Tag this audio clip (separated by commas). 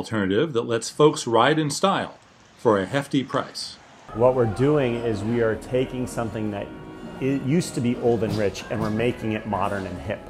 Music, Speech